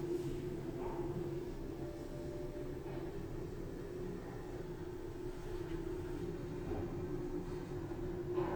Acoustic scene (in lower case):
elevator